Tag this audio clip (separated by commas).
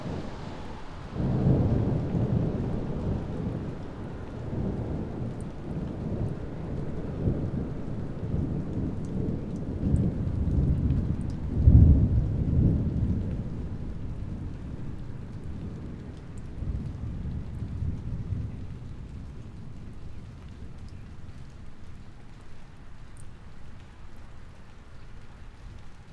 Rain, Thunderstorm, Water, Thunder